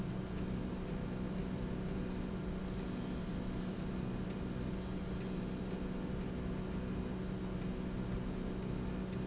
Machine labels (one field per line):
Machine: slide rail